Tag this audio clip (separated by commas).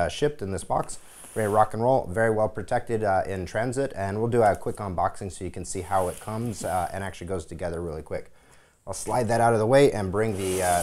Speech